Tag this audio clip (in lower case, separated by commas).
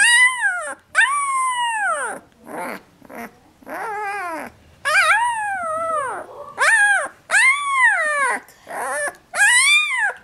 dog, animal, domestic animals